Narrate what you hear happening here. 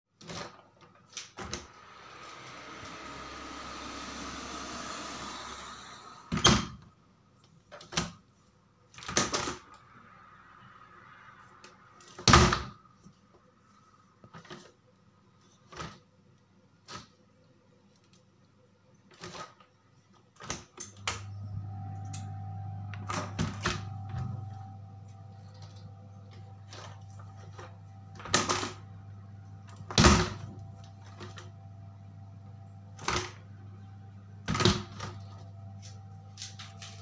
I opened the window and closing with latching and sliding mechanism